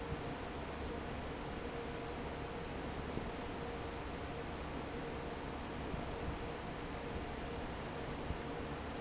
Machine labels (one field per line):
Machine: fan